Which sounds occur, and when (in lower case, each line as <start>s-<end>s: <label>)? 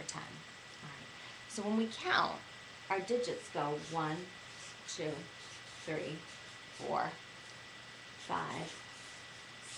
0.0s-9.7s: mechanisms
0.1s-0.4s: female speech
0.8s-1.1s: female speech
1.6s-2.4s: female speech
2.9s-4.3s: female speech
3.7s-7.1s: writing
4.9s-5.2s: female speech
5.8s-6.2s: female speech
6.7s-7.1s: female speech
8.1s-9.2s: writing
8.3s-8.8s: female speech